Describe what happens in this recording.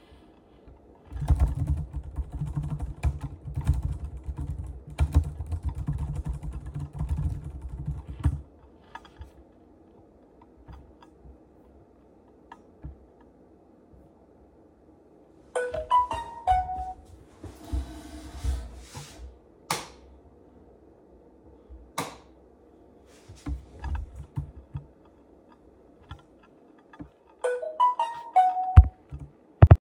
I was working on my laptop, i got a notification on my phone, then i stood up turned the light on and off again, sat on my desk and got another notification